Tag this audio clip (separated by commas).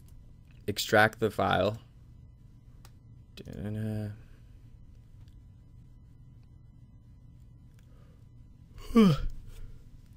Speech